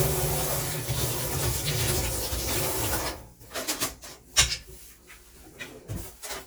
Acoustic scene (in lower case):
kitchen